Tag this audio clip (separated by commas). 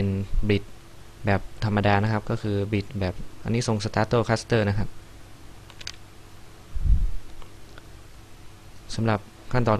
Speech